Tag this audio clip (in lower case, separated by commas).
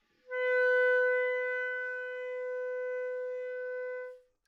musical instrument, wind instrument, music